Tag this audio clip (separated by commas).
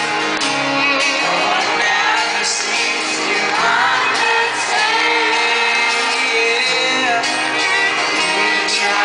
Choir, Male singing, Music